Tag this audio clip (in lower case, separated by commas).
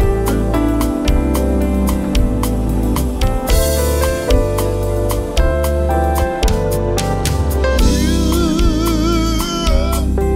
music